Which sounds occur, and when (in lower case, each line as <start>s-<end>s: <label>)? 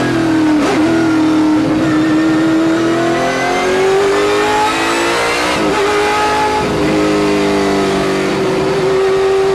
0.0s-9.5s: accelerating
0.0s-9.5s: race car
0.6s-0.8s: generic impact sounds